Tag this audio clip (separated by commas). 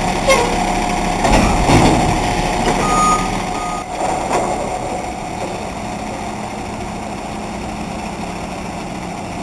Vehicle, Truck, Reversing beeps